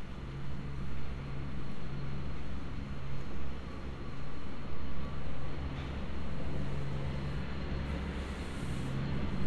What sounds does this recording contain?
engine of unclear size